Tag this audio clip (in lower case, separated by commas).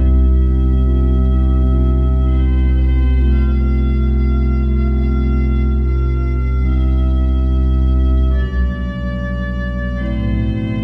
musical instrument, organ, music, keyboard (musical)